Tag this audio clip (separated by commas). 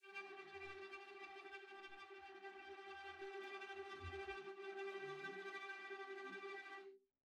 Music, Musical instrument, Bowed string instrument